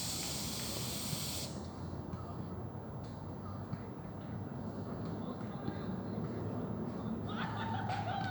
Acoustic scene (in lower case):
park